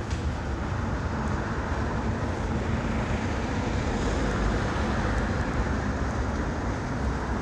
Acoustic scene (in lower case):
street